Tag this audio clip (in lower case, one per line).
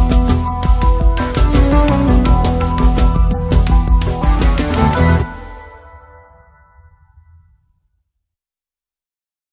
silence
music